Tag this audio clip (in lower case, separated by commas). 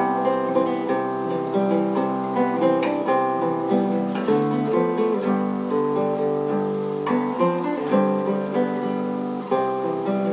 musical instrument, guitar, acoustic guitar, music, plucked string instrument